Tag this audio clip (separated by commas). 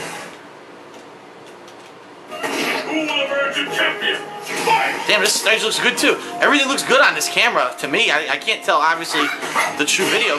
Speech